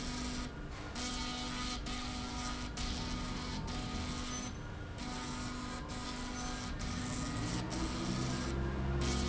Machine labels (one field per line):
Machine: slide rail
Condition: abnormal